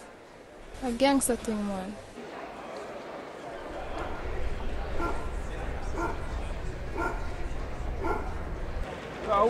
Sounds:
crowd
speech

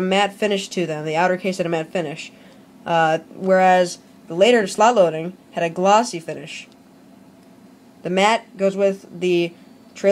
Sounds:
speech

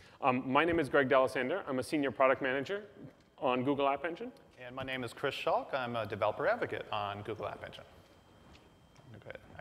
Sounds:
speech

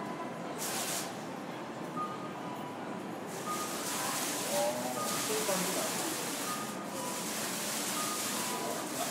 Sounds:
speech

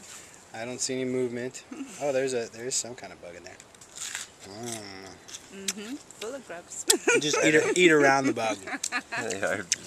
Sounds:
speech

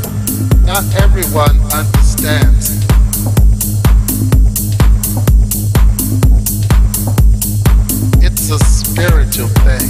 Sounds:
music
house music

